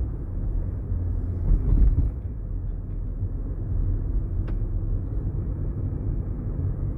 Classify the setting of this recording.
car